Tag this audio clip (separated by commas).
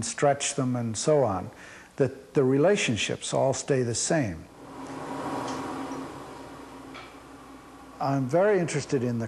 Glass, Speech